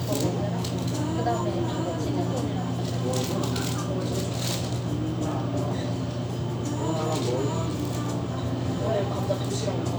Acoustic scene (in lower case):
restaurant